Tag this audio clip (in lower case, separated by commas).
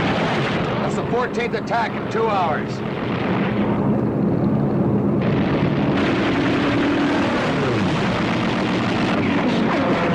speech, wind noise (microphone)